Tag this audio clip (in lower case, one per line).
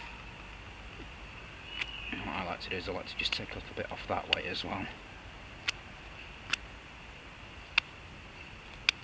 speech